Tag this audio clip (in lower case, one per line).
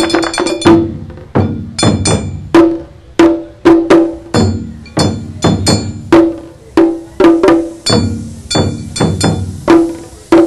music